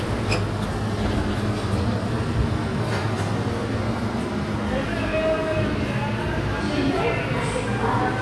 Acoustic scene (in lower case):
subway station